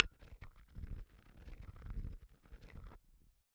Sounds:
Glass

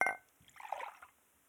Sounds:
dishes, pots and pans, Chink, Glass, Domestic sounds

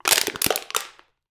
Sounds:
Crushing

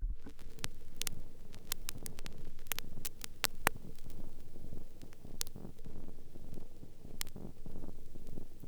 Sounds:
Crackle

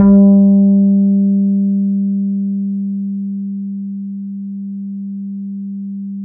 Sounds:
Bass guitar, Music, Guitar, Plucked string instrument, Musical instrument

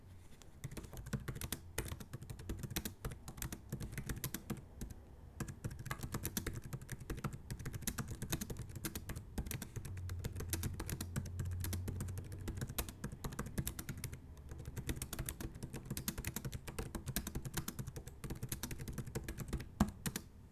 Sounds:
Domestic sounds, Typing, Computer keyboard

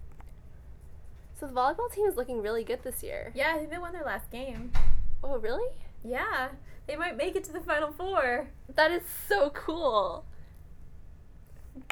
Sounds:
Conversation, Speech, Human voice

